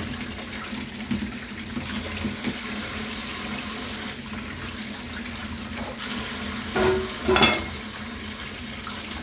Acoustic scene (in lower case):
kitchen